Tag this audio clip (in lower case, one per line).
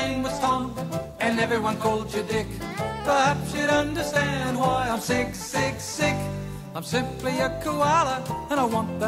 music